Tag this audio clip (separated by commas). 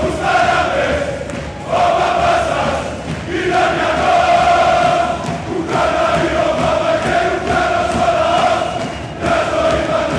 singing choir